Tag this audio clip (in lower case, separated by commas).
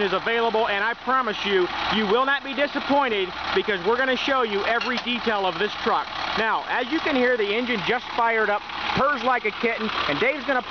speech, vehicle, truck